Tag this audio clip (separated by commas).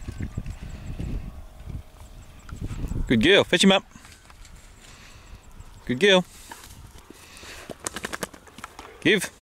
Speech